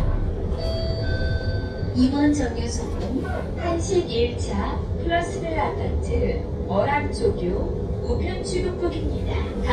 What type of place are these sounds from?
bus